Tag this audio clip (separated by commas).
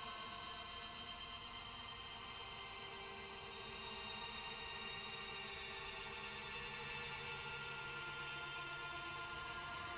Music